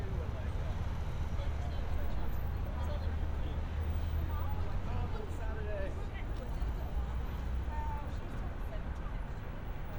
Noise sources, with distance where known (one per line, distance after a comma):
person or small group talking, far